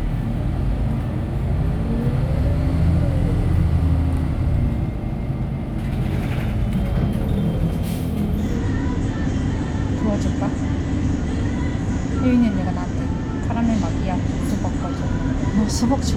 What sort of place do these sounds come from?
bus